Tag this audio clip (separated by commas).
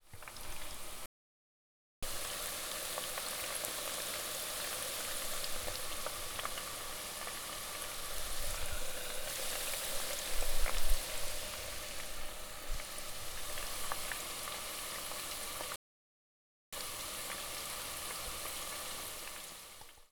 faucet, Domestic sounds